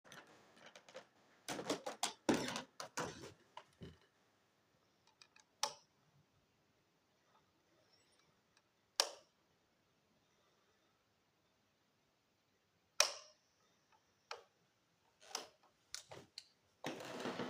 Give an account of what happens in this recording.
I entered the dark kitchen, walked to the switch, and turned on the light. The light made a clicking sound while I walked.